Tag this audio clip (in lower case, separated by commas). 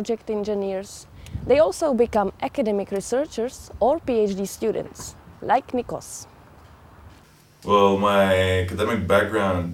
speech